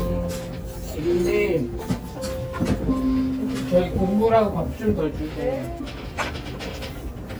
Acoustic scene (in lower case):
restaurant